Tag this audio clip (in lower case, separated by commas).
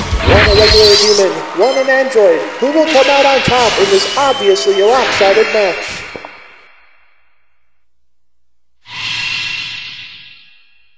speech, music